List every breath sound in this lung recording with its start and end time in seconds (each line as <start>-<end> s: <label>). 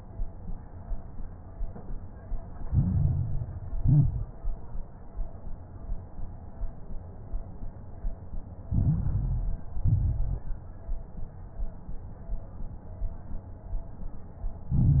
2.68-3.78 s: inhalation
2.68-3.78 s: crackles
3.80-4.43 s: exhalation
3.80-4.43 s: crackles
8.68-9.78 s: inhalation
8.68-9.78 s: crackles
9.82-10.46 s: exhalation
9.82-10.46 s: crackles
14.71-15.00 s: inhalation
14.71-15.00 s: crackles